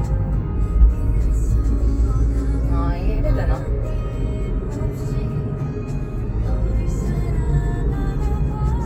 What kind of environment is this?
car